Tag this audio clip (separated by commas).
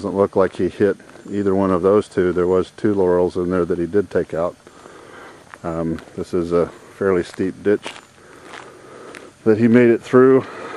Speech